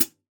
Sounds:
percussion, cymbal, hi-hat, music, musical instrument

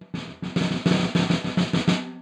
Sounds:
musical instrument, music, percussion, snare drum, drum

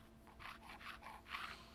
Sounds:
tools

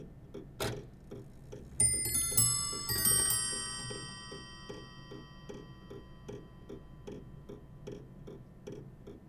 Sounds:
clock, mechanisms

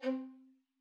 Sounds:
musical instrument, music, bowed string instrument

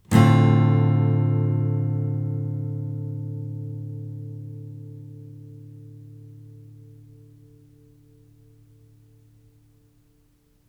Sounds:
musical instrument, guitar, music, strum, plucked string instrument

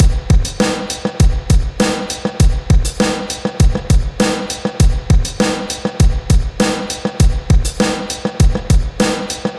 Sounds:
music, musical instrument, drum, drum kit, percussion

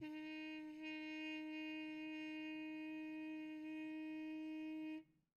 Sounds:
trumpet, musical instrument, music, brass instrument

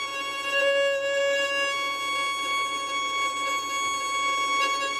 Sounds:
music, bowed string instrument, musical instrument

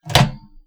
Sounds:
domestic sounds, microwave oven

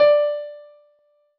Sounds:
piano, keyboard (musical), musical instrument, music

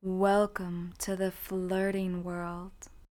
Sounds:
human voice, speech, female speech

